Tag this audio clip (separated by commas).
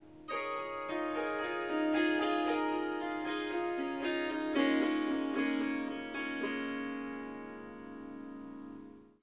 Harp, Music, Musical instrument